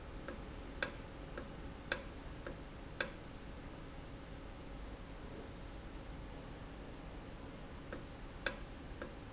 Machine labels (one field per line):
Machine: valve